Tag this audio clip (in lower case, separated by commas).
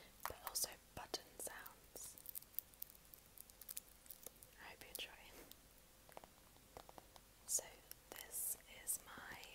speech